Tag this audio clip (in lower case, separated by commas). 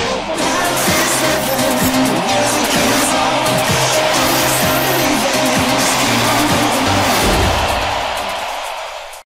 music